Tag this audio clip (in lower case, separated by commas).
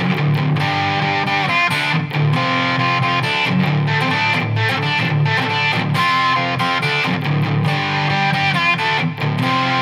electric guitar, music